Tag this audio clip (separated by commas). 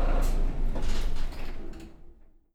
Engine, Vehicle, Motor vehicle (road), Bus